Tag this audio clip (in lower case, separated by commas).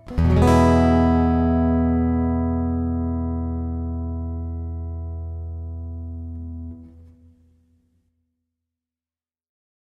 guitar, musical instrument, acoustic guitar, music, plucked string instrument